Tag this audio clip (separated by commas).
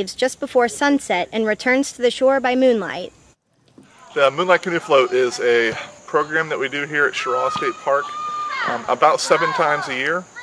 Speech